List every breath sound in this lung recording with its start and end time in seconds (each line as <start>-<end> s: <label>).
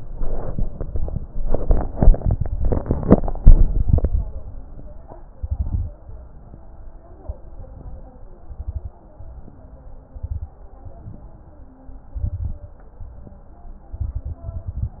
5.38-5.91 s: inhalation
5.38-5.91 s: crackles
8.42-8.95 s: inhalation
8.42-8.95 s: crackles
10.07-10.60 s: inhalation
10.07-10.60 s: crackles
12.20-12.73 s: inhalation
12.20-12.73 s: crackles
13.98-15.00 s: inhalation
13.98-15.00 s: crackles